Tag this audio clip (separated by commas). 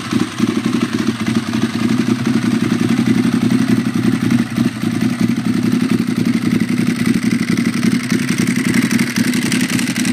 Idling, Engine, Medium engine (mid frequency), Vehicle